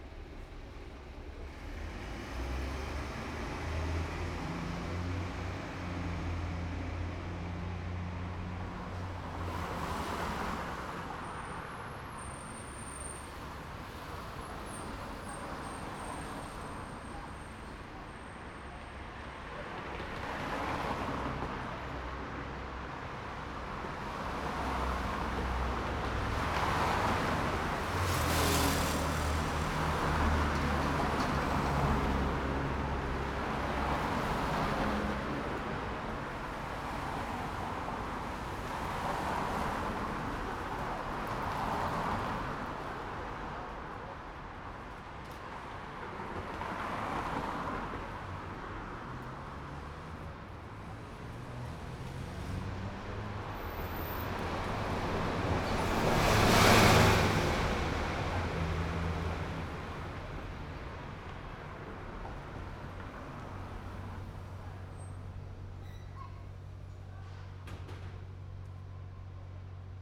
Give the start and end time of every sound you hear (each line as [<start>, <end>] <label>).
[0.00, 1.29] bus engine idling
[0.00, 8.76] bus
[1.29, 8.76] bus engine accelerating
[9.94, 11.22] car engine accelerating
[9.94, 53.89] car
[9.94, 53.89] car wheels rolling
[27.64, 30.49] motorcycle
[27.64, 30.49] motorcycle engine accelerating
[30.49, 33.85] car engine accelerating
[48.59, 53.49] car engine accelerating
[53.34, 60.24] bus
[53.34, 60.24] bus engine accelerating
[60.61, 66.00] car wheels rolling
[60.61, 70.03] car
[65.65, 70.03] car engine idling
[65.67, 68.22] people talking